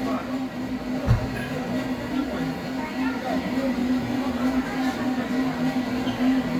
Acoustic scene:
cafe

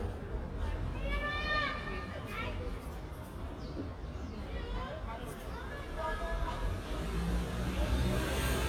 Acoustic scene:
residential area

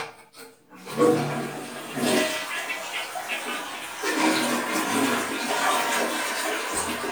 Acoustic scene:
restroom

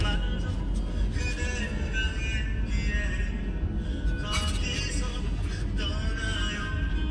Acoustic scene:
car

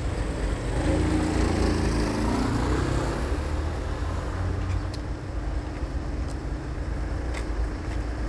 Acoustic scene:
street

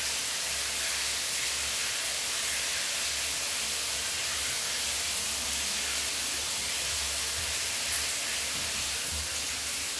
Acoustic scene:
restroom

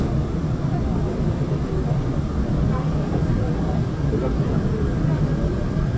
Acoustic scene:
subway train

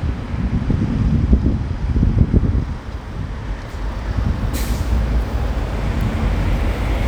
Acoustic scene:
street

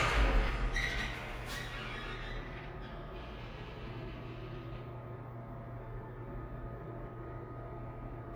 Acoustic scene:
elevator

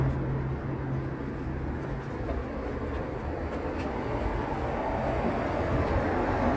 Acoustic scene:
street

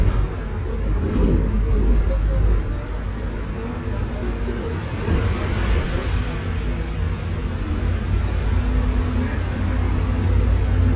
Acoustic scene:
bus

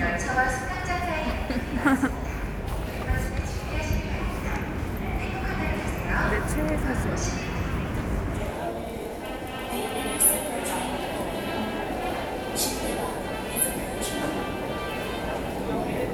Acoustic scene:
subway station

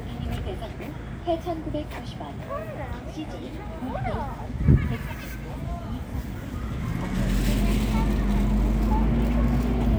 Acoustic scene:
residential area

